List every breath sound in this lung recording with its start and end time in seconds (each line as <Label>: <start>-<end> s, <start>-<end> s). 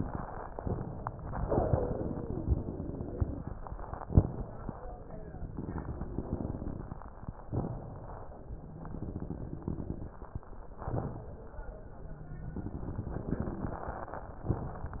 Inhalation: 0.54-1.42 s, 4.04-4.92 s, 7.50-8.38 s, 10.84-11.66 s
Exhalation: 1.46-3.44 s, 5.46-6.98 s, 8.58-10.12 s, 12.02-14.50 s
Wheeze: 1.46-3.44 s, 5.46-6.98 s, 8.58-10.12 s, 12.02-14.36 s